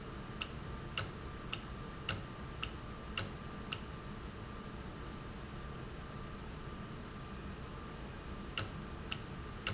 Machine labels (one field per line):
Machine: valve